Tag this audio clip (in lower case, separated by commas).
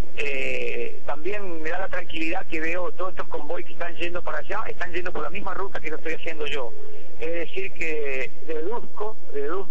speech